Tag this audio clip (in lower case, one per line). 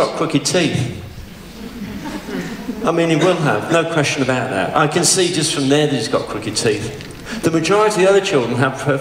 man speaking
speech